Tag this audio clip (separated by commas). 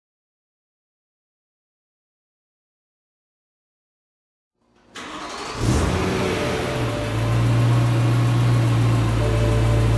inside a small room, Vehicle, Silence, Car